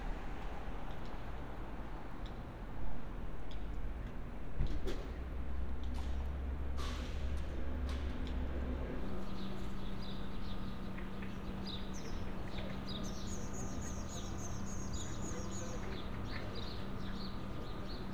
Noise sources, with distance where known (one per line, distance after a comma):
background noise